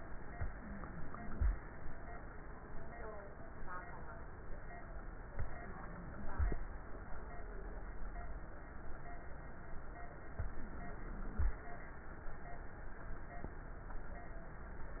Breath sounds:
0.30-1.50 s: inhalation
0.48-1.43 s: wheeze
5.33-6.54 s: inhalation
5.44-6.39 s: wheeze
10.36-11.56 s: inhalation
10.56-11.51 s: wheeze

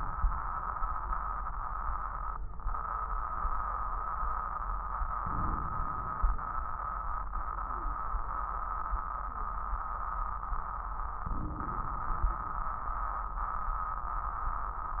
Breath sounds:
5.17-6.16 s: crackles
5.18-6.18 s: inhalation
6.13-6.61 s: exhalation
11.25-12.25 s: inhalation
11.25-12.25 s: crackles

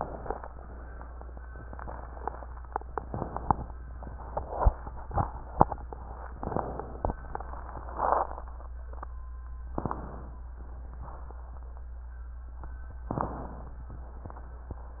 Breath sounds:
9.71-10.49 s: inhalation
13.11-13.89 s: inhalation

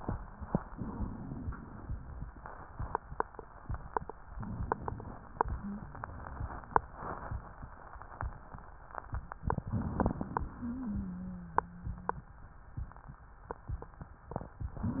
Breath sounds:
0.69-1.64 s: inhalation
4.29-5.18 s: crackles
4.33-5.19 s: inhalation
9.69-10.57 s: inhalation
9.69-10.57 s: crackles
10.57-12.20 s: wheeze

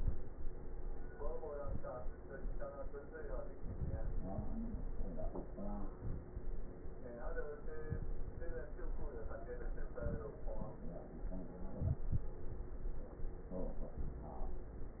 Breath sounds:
5.92-6.57 s: inhalation
7.84-8.49 s: inhalation
11.71-12.28 s: inhalation

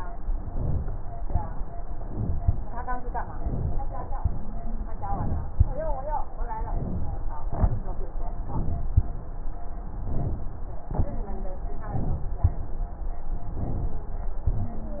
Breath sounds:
0.21-1.22 s: inhalation
1.23-1.65 s: exhalation
2.03-3.04 s: inhalation
3.21-4.16 s: inhalation
4.17-4.88 s: exhalation
4.17-4.88 s: wheeze
5.01-5.96 s: inhalation
6.47-7.42 s: inhalation
7.53-7.89 s: exhalation
8.12-8.94 s: inhalation
8.96-9.32 s: exhalation
9.83-10.84 s: inhalation
10.91-11.27 s: exhalation
10.97-11.67 s: wheeze
11.57-12.41 s: inhalation
12.41-12.77 s: exhalation
13.39-14.29 s: inhalation
14.49-14.80 s: wheeze
14.49-14.86 s: exhalation

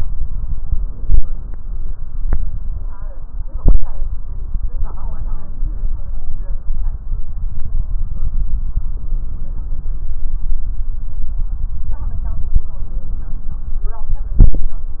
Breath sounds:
12.67-13.65 s: inhalation

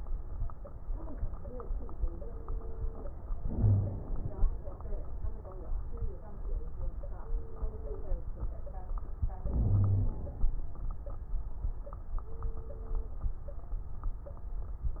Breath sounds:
3.38-4.50 s: inhalation
3.53-3.99 s: wheeze
9.46-10.17 s: wheeze
9.46-10.45 s: inhalation

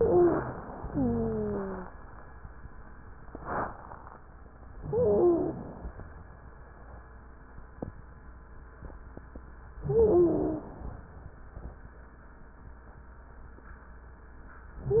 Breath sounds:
0.92-1.90 s: wheeze
4.74-5.92 s: inhalation
4.88-5.53 s: stridor
9.83-11.06 s: inhalation
9.85-10.62 s: stridor

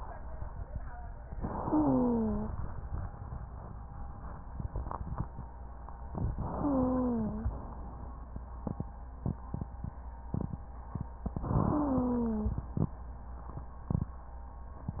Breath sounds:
1.35-2.52 s: inhalation
1.57-2.54 s: wheeze
6.34-7.51 s: inhalation
6.58-7.55 s: wheeze
11.46-12.64 s: inhalation
11.67-12.64 s: wheeze

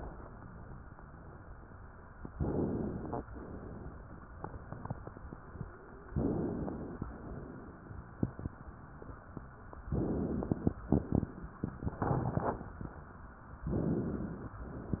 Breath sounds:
2.30-3.27 s: inhalation
6.09-7.06 s: inhalation
9.94-10.76 s: inhalation
13.70-14.55 s: inhalation

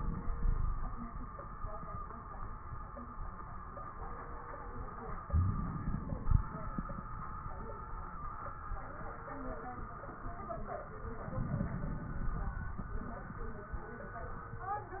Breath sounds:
0.33-0.99 s: wheeze
5.23-6.70 s: inhalation
5.23-6.70 s: crackles
11.22-12.68 s: inhalation
11.22-12.68 s: crackles

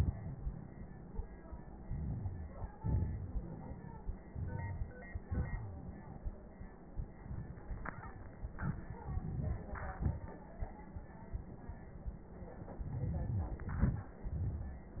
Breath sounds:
1.78-2.73 s: crackles
1.78-2.77 s: inhalation
2.75-4.22 s: exhalation
2.75-4.22 s: crackles
4.25-5.24 s: inhalation
4.25-5.24 s: crackles
5.22-5.81 s: wheeze
5.22-6.80 s: exhalation
8.46-9.04 s: exhalation
8.46-9.04 s: crackles
9.06-9.67 s: inhalation
9.06-9.67 s: crackles
9.69-10.64 s: exhalation
9.69-10.64 s: crackles

